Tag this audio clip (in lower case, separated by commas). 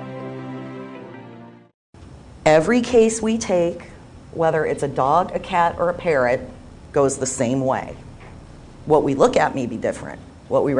music, speech